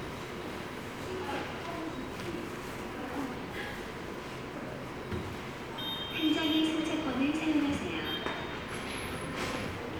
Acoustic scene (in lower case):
subway station